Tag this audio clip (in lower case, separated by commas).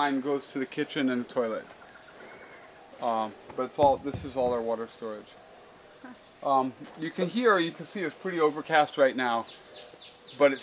speech